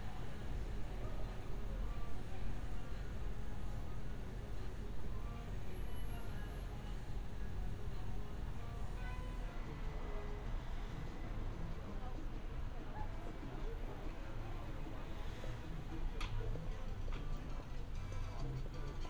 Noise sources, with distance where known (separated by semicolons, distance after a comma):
music from a fixed source, far